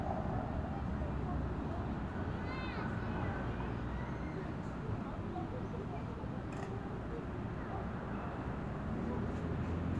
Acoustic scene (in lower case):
residential area